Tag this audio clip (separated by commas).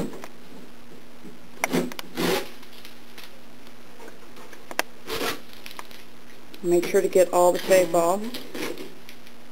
Speech